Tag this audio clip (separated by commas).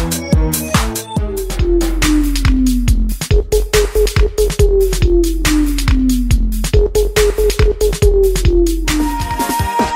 Music